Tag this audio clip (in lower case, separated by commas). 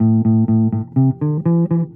bass guitar, plucked string instrument, guitar, music, musical instrument